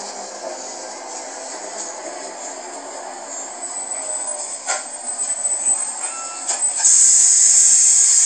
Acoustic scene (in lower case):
bus